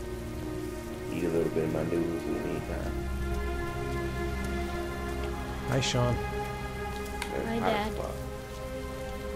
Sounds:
Rain on surface, Music, Raindrop, Speech

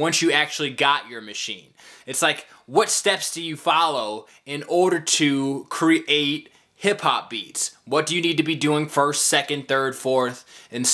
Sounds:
Speech

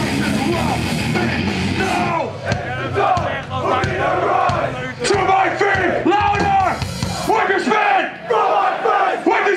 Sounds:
Singing

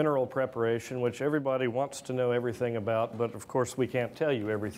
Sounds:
Speech

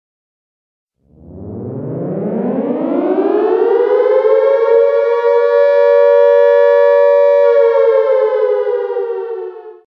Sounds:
Sound effect, Civil defense siren, Siren

